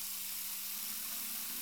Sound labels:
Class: water tap